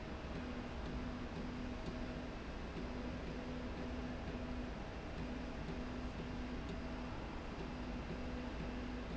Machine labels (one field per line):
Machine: slide rail